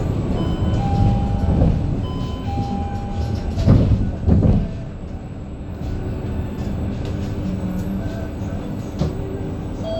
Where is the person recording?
on a bus